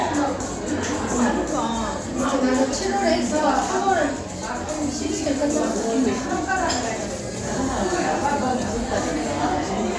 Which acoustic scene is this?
crowded indoor space